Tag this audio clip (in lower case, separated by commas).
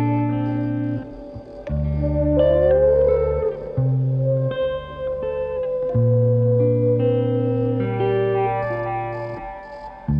music